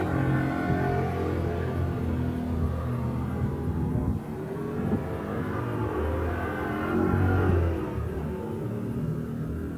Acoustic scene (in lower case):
residential area